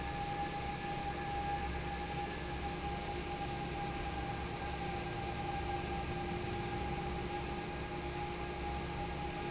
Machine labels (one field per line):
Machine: fan